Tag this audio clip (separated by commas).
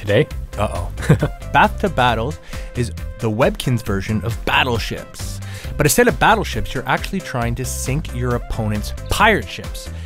Speech, Music